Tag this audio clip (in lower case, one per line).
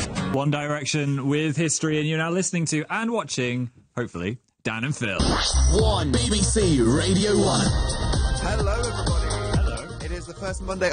radio
music
speech